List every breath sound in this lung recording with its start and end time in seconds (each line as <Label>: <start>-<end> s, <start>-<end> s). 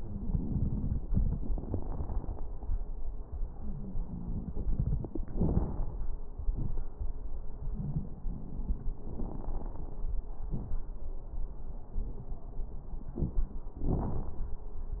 Inhalation: 5.26-5.81 s, 9.07-9.97 s
Exhalation: 6.48-6.84 s, 10.46-10.88 s
Wheeze: 3.56-4.56 s
Crackles: 5.26-5.81 s, 6.48-6.84 s, 9.07-9.97 s, 10.46-10.88 s